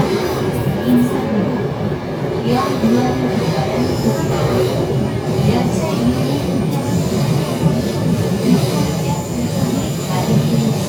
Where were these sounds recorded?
on a subway train